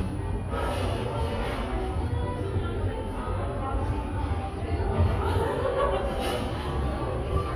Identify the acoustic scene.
cafe